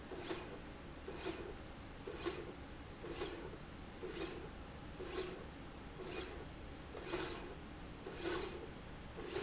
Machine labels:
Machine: slide rail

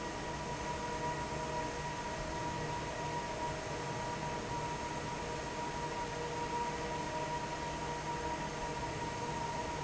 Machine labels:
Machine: fan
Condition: normal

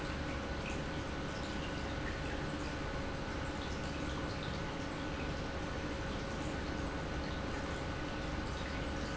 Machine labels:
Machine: pump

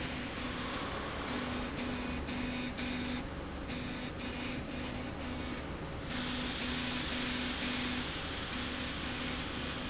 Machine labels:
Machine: slide rail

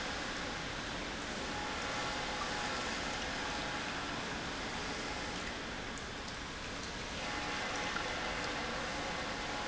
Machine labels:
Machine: pump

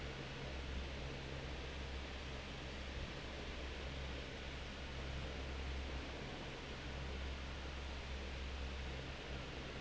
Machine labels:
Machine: fan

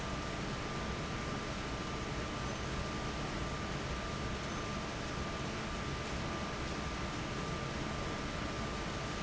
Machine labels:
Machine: fan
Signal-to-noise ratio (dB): -6 dB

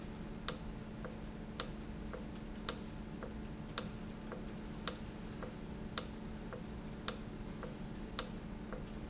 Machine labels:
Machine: valve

